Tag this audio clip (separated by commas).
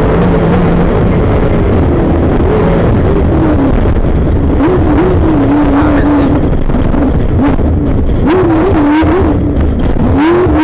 Vehicle, Speech, Car